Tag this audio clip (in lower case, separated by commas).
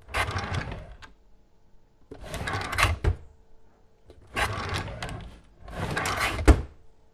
drawer open or close, domestic sounds